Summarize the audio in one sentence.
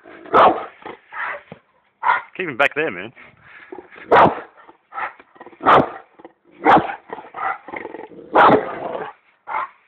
Dogs barking with a comment